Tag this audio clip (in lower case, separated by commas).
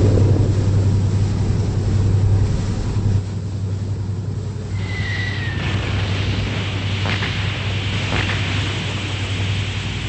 ship, vehicle